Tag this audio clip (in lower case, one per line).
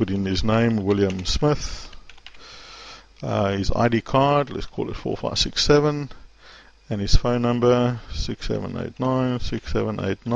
speech